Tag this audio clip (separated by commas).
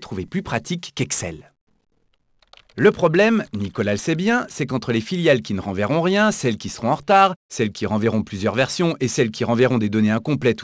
Speech